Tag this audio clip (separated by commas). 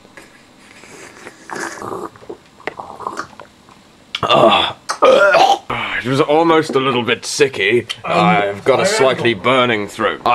Speech